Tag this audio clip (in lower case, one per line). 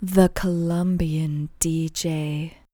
speech
woman speaking
human voice